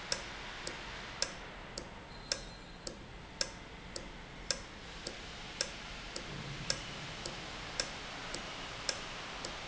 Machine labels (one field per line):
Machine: valve